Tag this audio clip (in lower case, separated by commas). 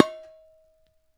dishes, pots and pans, home sounds